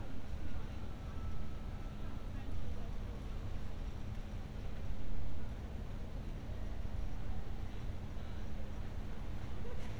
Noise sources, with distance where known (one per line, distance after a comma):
unidentified human voice, far